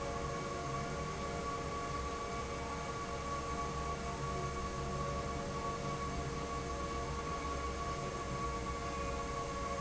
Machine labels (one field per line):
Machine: fan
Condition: normal